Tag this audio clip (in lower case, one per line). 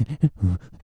breathing
respiratory sounds